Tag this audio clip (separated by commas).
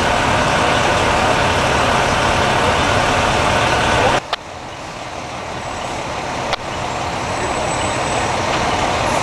Speech, Truck